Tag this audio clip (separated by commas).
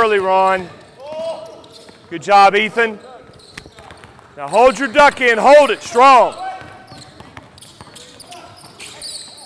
Speech, Basketball bounce